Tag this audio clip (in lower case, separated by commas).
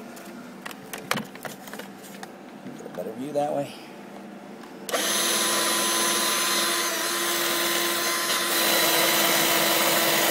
power tool, speech